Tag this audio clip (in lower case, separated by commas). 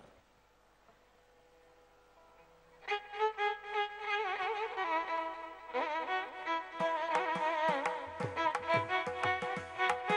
musical instrument, music